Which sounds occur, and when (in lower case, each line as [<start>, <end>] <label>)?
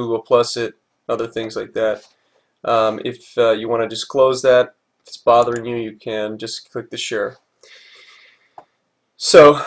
[0.00, 0.73] male speech
[0.00, 9.65] mechanisms
[1.06, 2.10] male speech
[2.06, 2.58] breathing
[2.60, 4.76] male speech
[4.97, 7.39] male speech
[5.38, 5.59] clicking
[7.60, 8.43] breathing
[8.55, 8.66] generic impact sounds
[9.12, 9.57] male speech